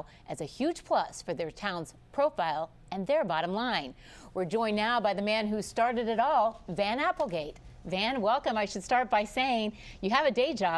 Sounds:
speech

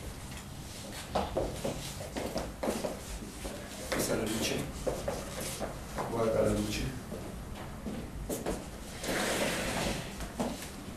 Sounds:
speech

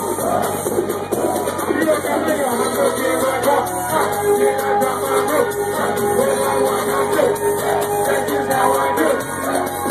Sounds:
music

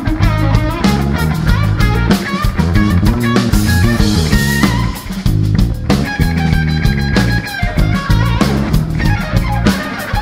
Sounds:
music, bass guitar, musical instrument, electric guitar, plucked string instrument, strum

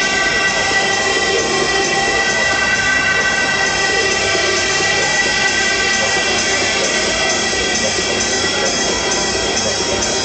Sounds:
music, techno

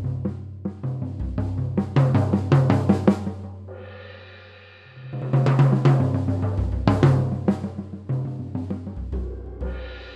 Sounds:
snare drum, bass drum, drum, drum kit, drum roll, percussion

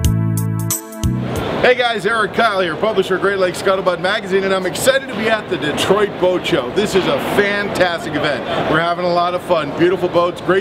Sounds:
music, speech

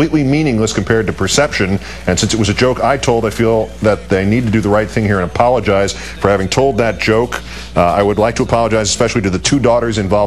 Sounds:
speech

